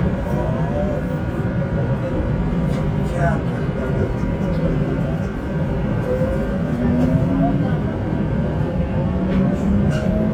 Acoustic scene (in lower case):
subway train